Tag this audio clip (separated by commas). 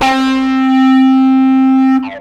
Electric guitar, Bass guitar, Plucked string instrument, Music, Guitar, Musical instrument